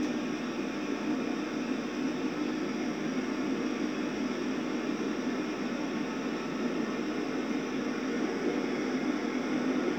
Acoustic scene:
subway train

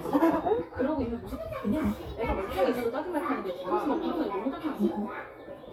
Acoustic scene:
crowded indoor space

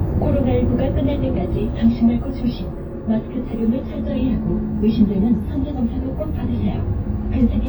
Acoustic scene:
bus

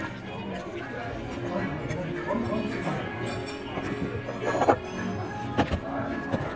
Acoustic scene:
restaurant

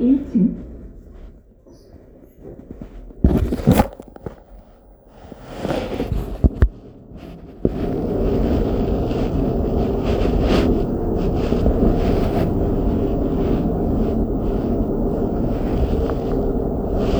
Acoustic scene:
elevator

